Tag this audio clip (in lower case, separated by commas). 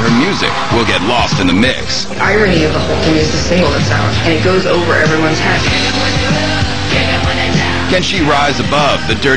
music, speech